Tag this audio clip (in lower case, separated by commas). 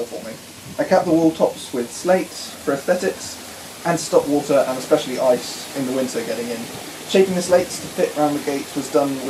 speech